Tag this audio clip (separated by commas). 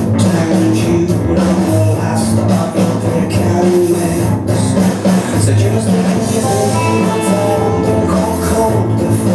Music